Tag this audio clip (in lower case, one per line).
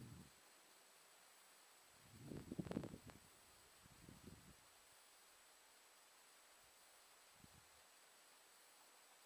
silence